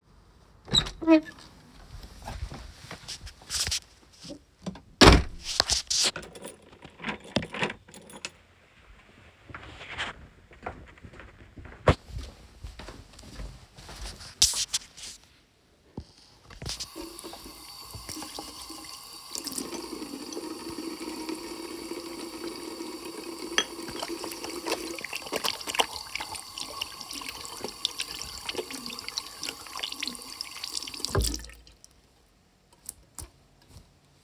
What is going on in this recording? I opened the door, walked inside and closed it, then locked it. Then I walked to the bathroom and washed my hands.